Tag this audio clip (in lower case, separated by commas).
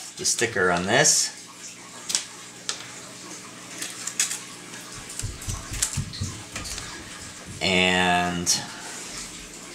speech, inside a small room